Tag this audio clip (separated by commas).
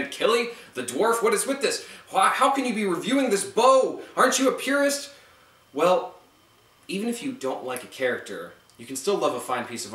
Speech